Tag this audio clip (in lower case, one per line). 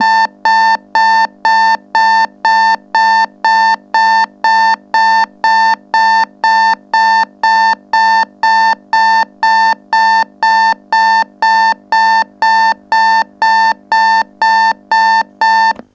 alarm